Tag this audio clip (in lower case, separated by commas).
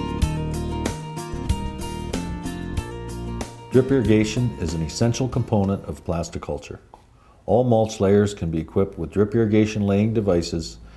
speech, music